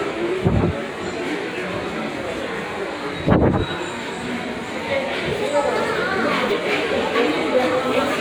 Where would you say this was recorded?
in a subway station